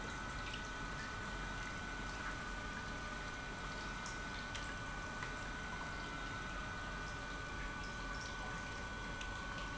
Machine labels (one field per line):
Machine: pump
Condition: normal